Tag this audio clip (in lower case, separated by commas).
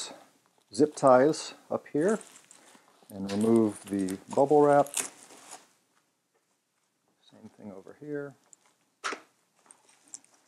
speech